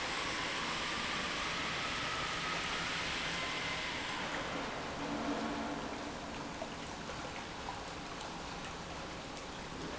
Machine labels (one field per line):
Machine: pump